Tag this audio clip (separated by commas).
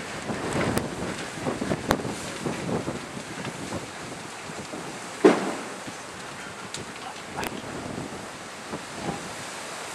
Speech